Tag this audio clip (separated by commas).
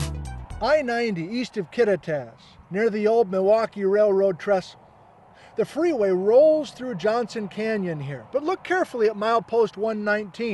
Speech, Music